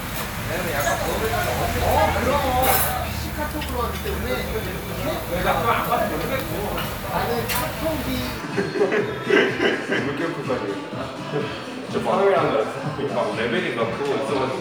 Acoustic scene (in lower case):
crowded indoor space